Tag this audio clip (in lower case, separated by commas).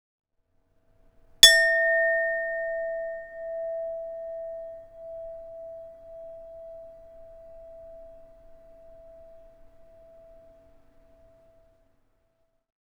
glass, clink